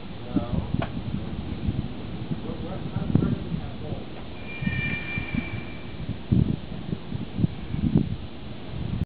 Wind blows followed by a far away high pitched sound